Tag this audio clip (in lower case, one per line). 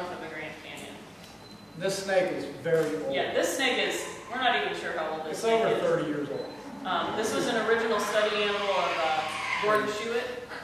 speech
inside a small room